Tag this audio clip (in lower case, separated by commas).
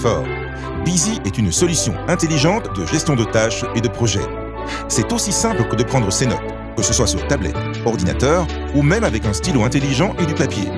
speech, music